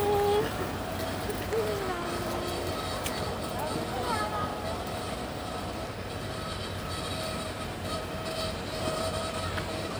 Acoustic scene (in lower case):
residential area